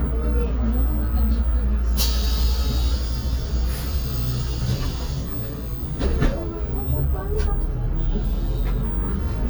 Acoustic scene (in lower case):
bus